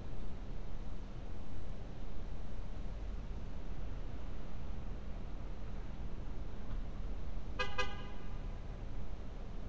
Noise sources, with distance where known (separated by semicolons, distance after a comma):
car horn, near